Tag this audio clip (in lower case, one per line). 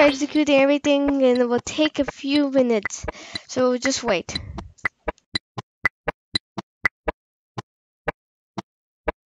speech